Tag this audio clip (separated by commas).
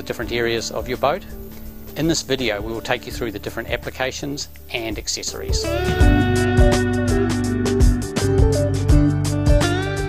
Speech, Music